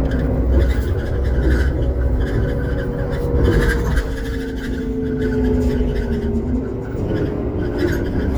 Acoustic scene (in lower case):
bus